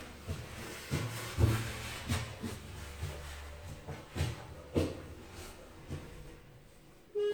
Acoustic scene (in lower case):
elevator